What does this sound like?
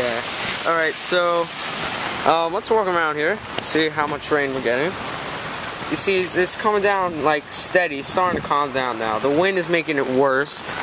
A man is talking in the rain